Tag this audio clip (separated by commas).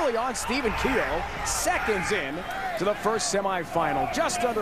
Speech